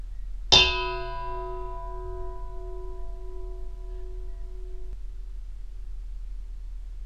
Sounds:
home sounds, dishes, pots and pans

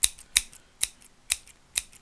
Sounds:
scissors, domestic sounds

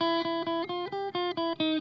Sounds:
guitar, electric guitar, plucked string instrument, musical instrument, music

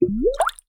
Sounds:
water, gurgling

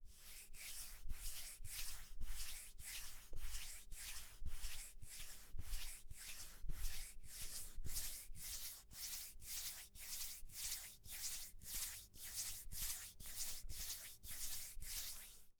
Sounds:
hands

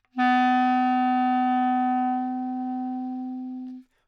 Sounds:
musical instrument, wind instrument, music

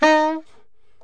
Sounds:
music, musical instrument, woodwind instrument

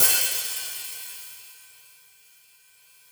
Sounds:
cymbal, percussion, music, musical instrument, hi-hat

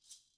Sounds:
percussion, rattle (instrument), musical instrument, music

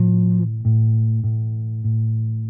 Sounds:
plucked string instrument, music, musical instrument, guitar, bass guitar

